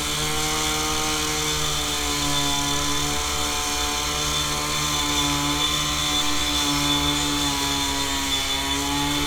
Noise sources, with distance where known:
large rotating saw, near

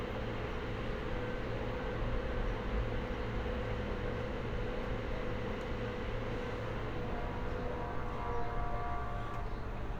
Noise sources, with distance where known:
unidentified alert signal, far

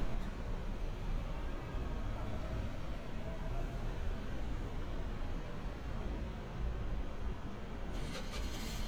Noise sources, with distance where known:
small-sounding engine

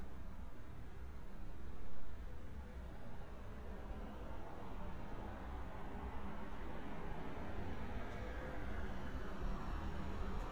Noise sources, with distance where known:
medium-sounding engine

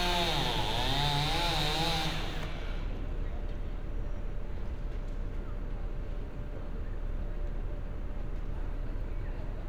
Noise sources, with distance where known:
unidentified powered saw

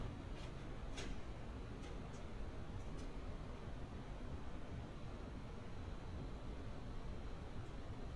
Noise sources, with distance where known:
non-machinery impact, near

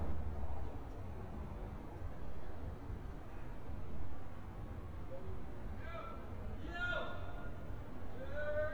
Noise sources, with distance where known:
person or small group shouting, far

